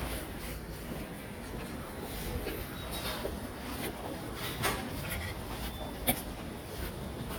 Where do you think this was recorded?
in a subway station